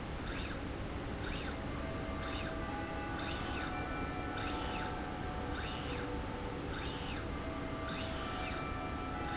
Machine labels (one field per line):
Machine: slide rail